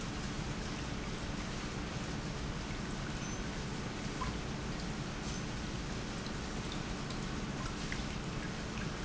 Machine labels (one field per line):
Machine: pump